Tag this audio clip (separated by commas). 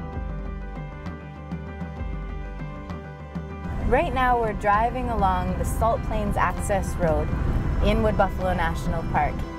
Speech, Music